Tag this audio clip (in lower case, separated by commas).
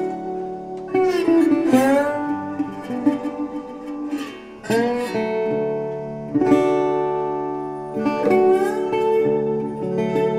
guitar, music, acoustic guitar, plucked string instrument, musical instrument